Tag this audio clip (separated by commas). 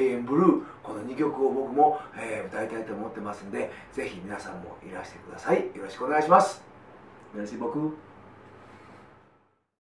Speech